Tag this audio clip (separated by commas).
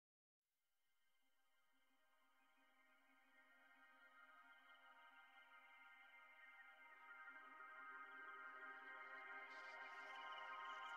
Music